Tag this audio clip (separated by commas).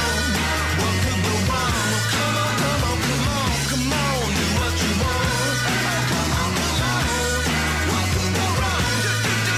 Music, Guitar, Musical instrument